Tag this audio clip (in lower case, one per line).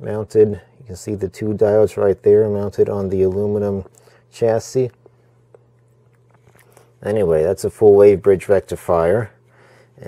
speech
inside a small room